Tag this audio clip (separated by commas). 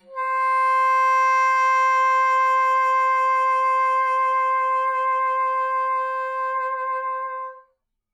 Musical instrument, Wind instrument, Music